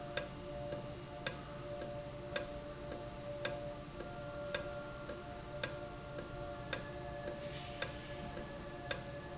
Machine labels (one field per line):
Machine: valve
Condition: normal